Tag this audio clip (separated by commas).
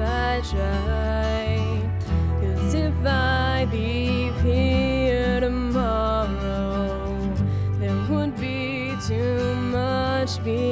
Sad music, Music